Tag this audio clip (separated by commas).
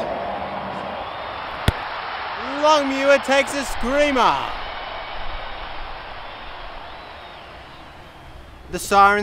Speech